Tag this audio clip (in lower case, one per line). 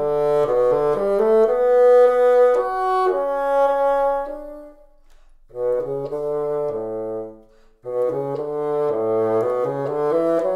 playing bassoon